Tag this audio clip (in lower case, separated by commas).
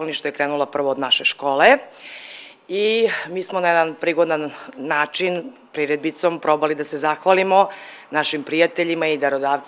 speech